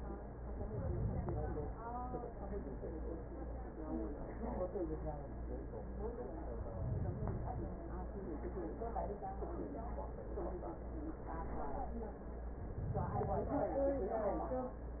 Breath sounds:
Inhalation: 0.35-1.85 s, 6.49-7.88 s, 12.53-13.91 s

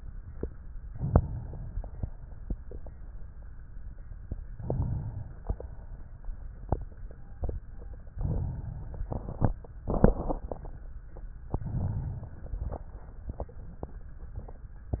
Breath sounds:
Inhalation: 0.79-1.89 s, 4.51-5.39 s, 8.09-9.09 s, 11.42-12.95 s
Exhalation: 5.39-6.30 s, 9.08-11.17 s

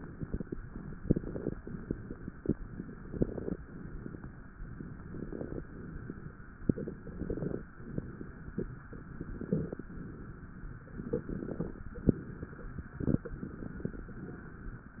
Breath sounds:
Inhalation: 1.04-1.56 s, 3.09-3.59 s, 5.11-5.60 s, 7.14-7.63 s, 9.18-9.90 s, 11.10-11.90 s, 12.98-13.89 s
Exhalation: 0.00-0.55 s, 1.61-2.39 s, 3.66-4.44 s, 5.67-6.45 s, 7.80-8.67 s, 9.96-10.83 s, 11.91-12.92 s
Crackles: 0.00-0.55 s, 1.04-1.56 s, 1.61-2.39 s, 3.09-3.59 s, 3.66-4.44 s, 5.11-5.60 s, 7.14-7.63 s, 7.80-8.67 s, 9.18-9.90 s, 11.10-11.90 s, 11.91-12.92 s, 12.98-13.89 s

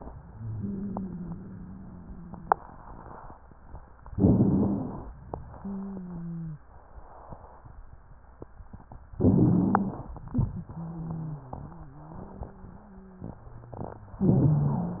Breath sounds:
Inhalation: 4.04-5.14 s, 9.13-10.14 s, 14.27-15.00 s
Exhalation: 0.00-2.61 s, 5.54-6.69 s, 10.32-14.24 s
Wheeze: 0.00-2.61 s, 5.54-6.69 s, 10.32-14.24 s
Rhonchi: 4.04-5.14 s, 9.13-10.14 s, 14.27-15.00 s

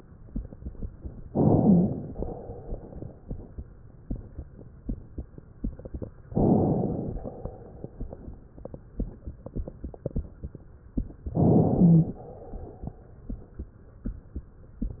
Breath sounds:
Inhalation: 1.26-2.10 s, 6.31-7.19 s, 11.33-12.18 s
Exhalation: 2.11-3.59 s, 7.17-8.47 s, 12.16-13.62 s
Wheeze: 1.63-1.90 s, 11.79-12.06 s

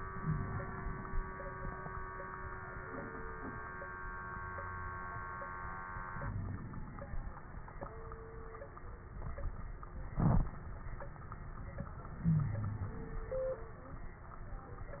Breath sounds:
Inhalation: 0.00-1.07 s, 6.09-7.18 s, 12.15-13.24 s
Wheeze: 0.14-0.42 s, 12.22-12.98 s
Crackles: 6.09-7.18 s

